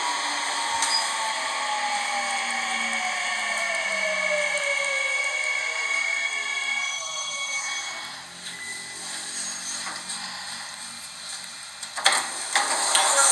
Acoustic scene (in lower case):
subway train